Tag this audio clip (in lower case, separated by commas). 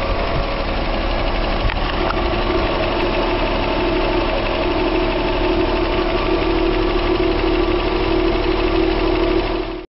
vehicle, engine, car, medium engine (mid frequency), idling